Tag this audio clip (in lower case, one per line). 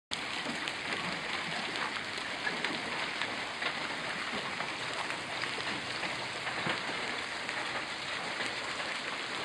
rain